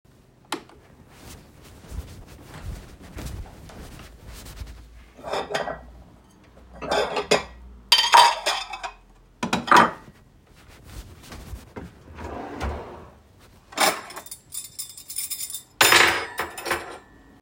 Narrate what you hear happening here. Carrying phone in my pocket, I turned on light, and walked to the kitchen tabletop. I organized dishes, opened a drawer and took out cutlery.